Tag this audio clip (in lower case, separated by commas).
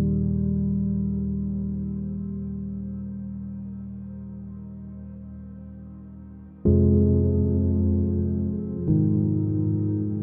music